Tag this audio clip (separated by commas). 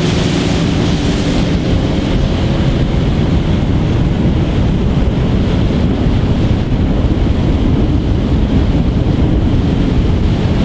speedboat, Vehicle